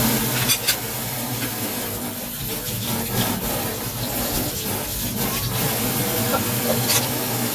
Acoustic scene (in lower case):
kitchen